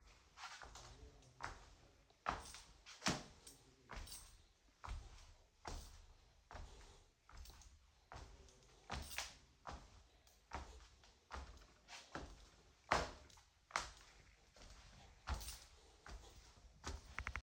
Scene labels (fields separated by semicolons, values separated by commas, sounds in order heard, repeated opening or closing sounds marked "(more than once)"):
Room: bedroom; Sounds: footsteps, keys